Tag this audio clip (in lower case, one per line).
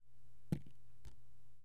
drip
rain
liquid
water
raindrop